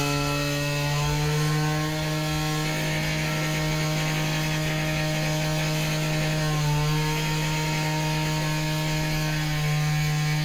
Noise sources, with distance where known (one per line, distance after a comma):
large rotating saw, near